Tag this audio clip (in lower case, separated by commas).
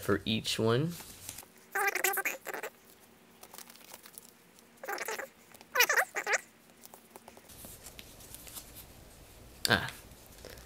speech, inside a small room